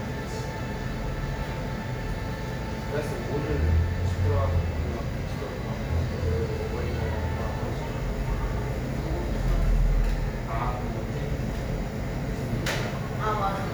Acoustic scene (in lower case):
cafe